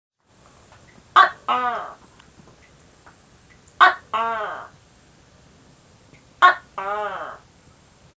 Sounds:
animal

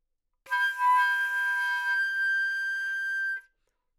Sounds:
woodwind instrument, musical instrument, music

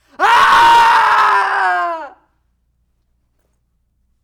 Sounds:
human voice, screaming

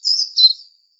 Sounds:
animal, bird vocalization, bird, wild animals

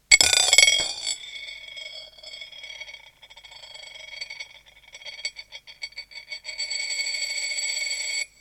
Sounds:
home sounds, coin (dropping)

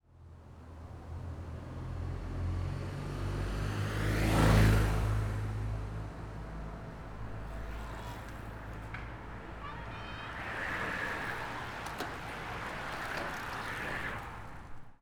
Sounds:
vehicle, bicycle

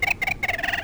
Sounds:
animal, wild animals, bird

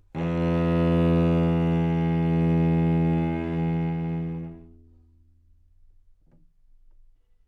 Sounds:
musical instrument, bowed string instrument, music

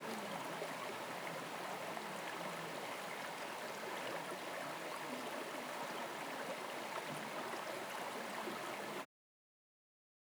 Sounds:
water, stream

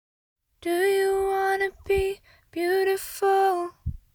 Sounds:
singing, human voice, female singing

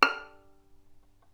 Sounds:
bowed string instrument, musical instrument, music

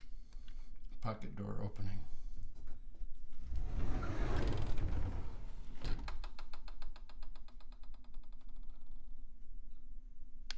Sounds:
door, domestic sounds, sliding door

